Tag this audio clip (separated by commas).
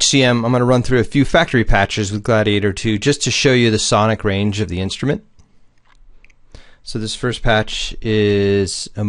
Speech